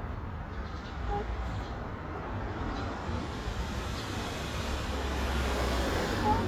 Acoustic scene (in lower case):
street